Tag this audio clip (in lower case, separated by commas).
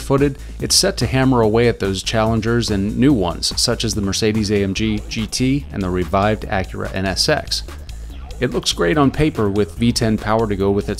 music, speech